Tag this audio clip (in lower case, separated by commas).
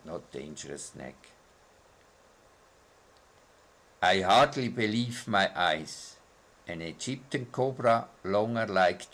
inside a small room, speech